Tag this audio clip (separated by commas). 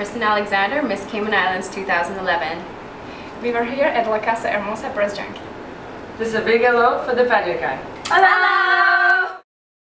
Speech